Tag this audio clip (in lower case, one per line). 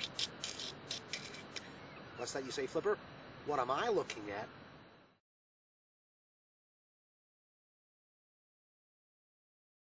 speech